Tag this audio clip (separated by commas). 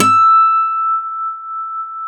Music, Plucked string instrument, Guitar, Musical instrument, Acoustic guitar